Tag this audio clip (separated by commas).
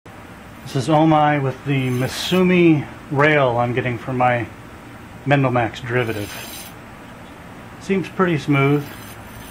Speech